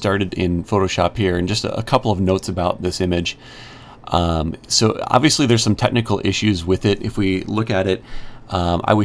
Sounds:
Speech

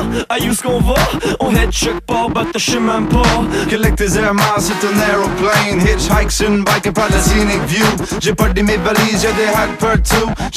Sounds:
Music, Rapping

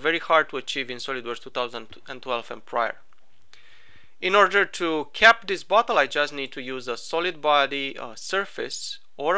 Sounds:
Speech

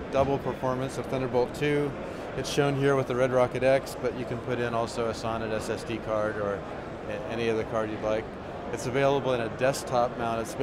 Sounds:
Speech

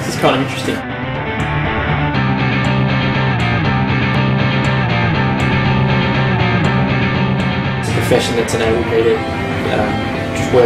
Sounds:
Music, Speech, man speaking

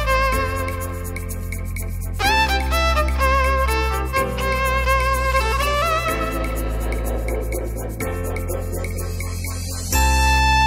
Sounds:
Bowed string instrument, Violin

